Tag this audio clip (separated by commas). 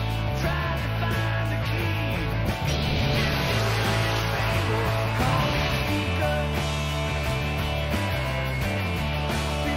Musical instrument, Plucked string instrument, Music, Strum, Guitar, Electric guitar